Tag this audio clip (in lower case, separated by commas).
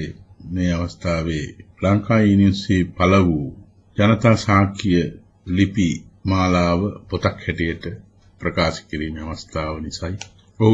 narration, speech, man speaking, speech synthesizer